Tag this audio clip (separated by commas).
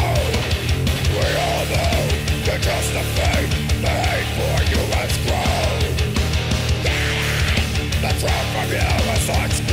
Music